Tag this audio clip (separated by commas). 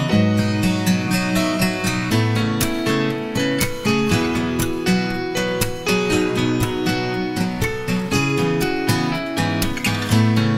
Music